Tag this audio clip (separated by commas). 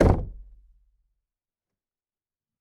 Door, Knock, home sounds